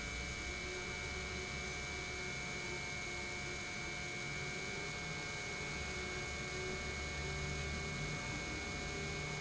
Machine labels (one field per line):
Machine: pump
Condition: normal